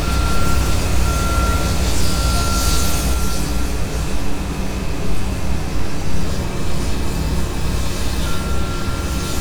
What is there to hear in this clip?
reverse beeper